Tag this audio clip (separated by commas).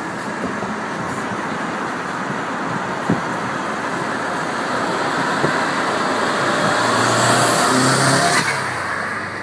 Speech